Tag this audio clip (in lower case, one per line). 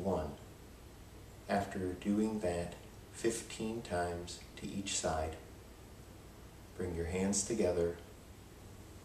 speech